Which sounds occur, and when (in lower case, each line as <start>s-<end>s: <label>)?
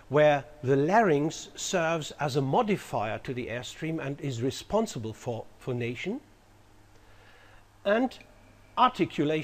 0.0s-9.4s: mechanisms
0.1s-0.4s: male speech
0.6s-5.4s: male speech
5.6s-6.2s: male speech
6.9s-7.6s: breathing
7.8s-8.2s: male speech
8.1s-8.2s: tick
8.8s-9.4s: male speech